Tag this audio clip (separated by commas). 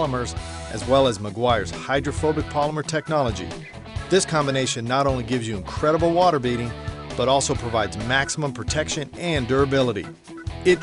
Music, Speech